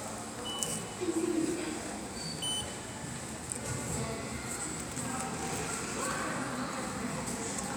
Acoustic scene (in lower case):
subway station